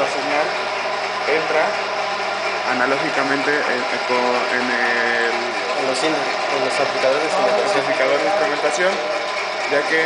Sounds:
Speech

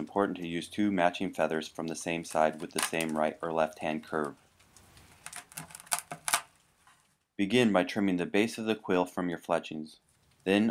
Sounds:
Speech

